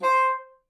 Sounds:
Wind instrument, Musical instrument, Music

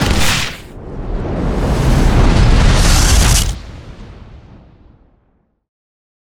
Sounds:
Boom, Explosion

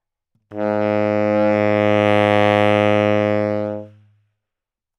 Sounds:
Musical instrument, Music, Wind instrument

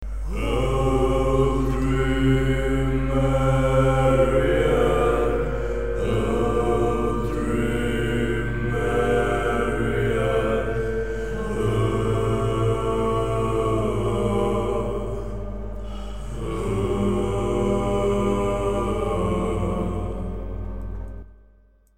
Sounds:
Human voice, Music, Singing, Musical instrument

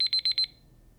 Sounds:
Alarm

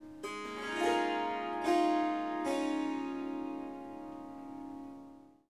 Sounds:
Musical instrument, Harp, Music

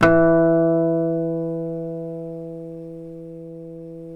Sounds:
Musical instrument, Guitar, Acoustic guitar, Music, Plucked string instrument

